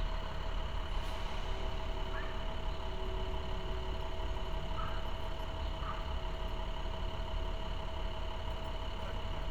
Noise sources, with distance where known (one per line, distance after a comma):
engine of unclear size